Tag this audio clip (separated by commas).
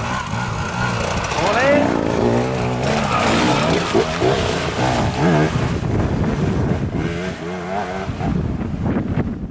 Vehicle, outside, rural or natural, Speech, Motorcycle